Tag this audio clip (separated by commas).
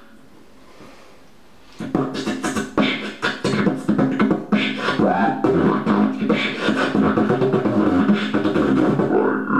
Dubstep